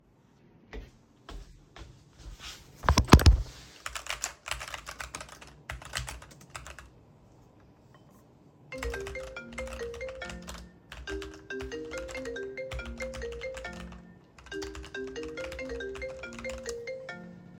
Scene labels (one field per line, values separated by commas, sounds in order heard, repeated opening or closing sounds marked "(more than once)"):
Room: office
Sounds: footsteps, keyboard typing, phone ringing